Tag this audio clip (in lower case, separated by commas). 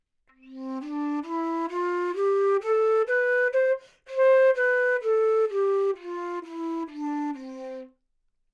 wind instrument, music, musical instrument